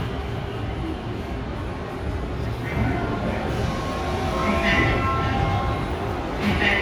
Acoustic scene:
subway station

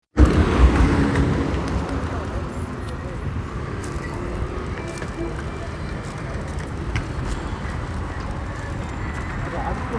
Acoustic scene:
street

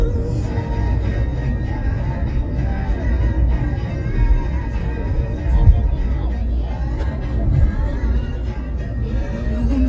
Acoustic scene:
car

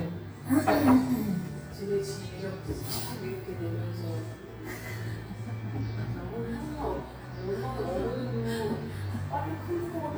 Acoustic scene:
cafe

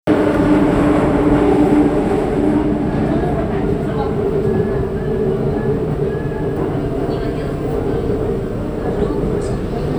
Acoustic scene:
subway train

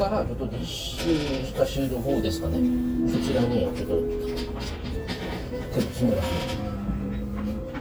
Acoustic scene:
restaurant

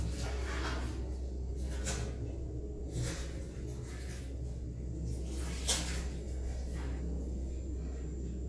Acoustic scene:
elevator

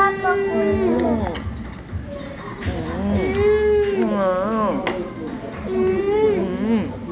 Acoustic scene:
restaurant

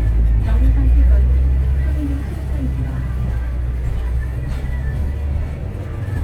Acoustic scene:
bus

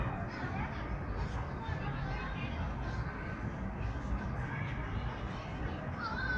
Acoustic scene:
park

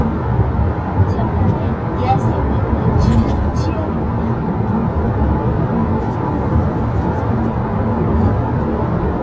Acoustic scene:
car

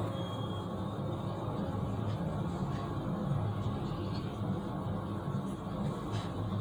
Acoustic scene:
elevator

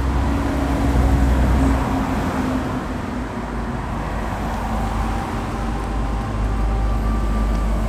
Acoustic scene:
street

